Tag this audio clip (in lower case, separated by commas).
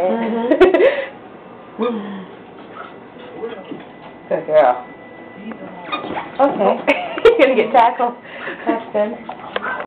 speech